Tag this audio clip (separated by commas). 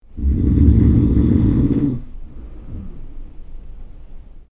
Breathing, Respiratory sounds